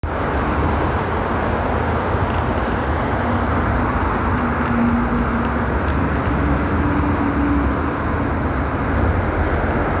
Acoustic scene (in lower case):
street